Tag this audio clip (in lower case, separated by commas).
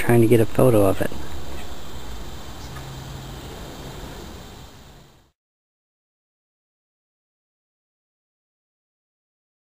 speech